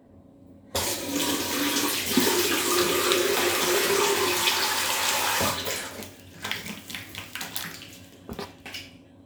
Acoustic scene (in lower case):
restroom